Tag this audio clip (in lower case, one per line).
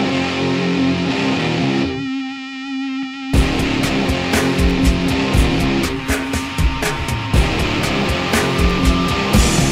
music